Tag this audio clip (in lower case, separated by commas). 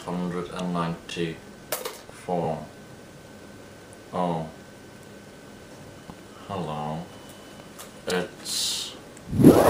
speech